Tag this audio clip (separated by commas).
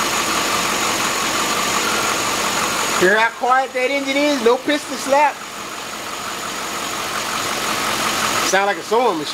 Speech, Vehicle, inside a large room or hall